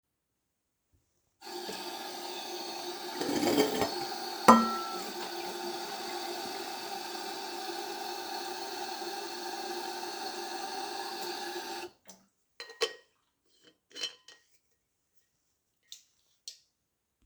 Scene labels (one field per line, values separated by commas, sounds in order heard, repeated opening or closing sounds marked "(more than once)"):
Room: kitchen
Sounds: running water, cutlery and dishes